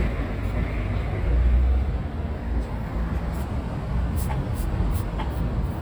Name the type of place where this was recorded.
residential area